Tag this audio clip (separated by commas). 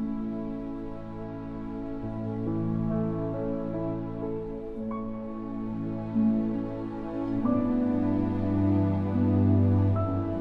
Music